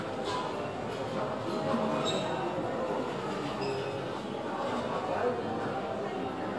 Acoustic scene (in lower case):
crowded indoor space